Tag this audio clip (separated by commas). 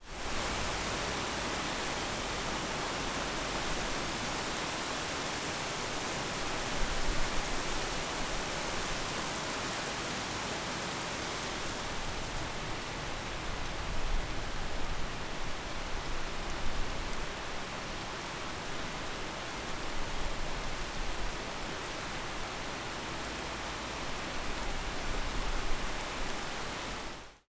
Water, Rain